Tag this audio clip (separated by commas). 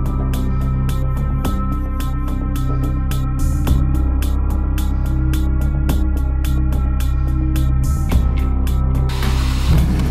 Music